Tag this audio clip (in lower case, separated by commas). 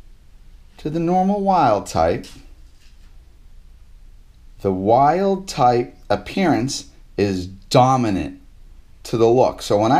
speech